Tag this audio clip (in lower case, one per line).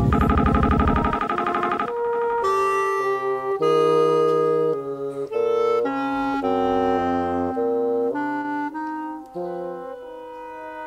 wind instrument
saxophone
clarinet
music